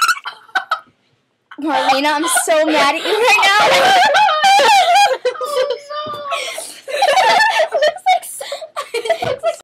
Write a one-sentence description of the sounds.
Girls giggle and squeal